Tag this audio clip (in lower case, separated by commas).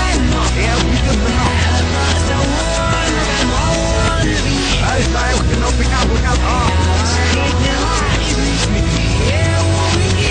music